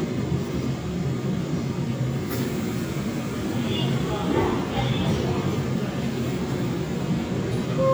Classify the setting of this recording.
subway train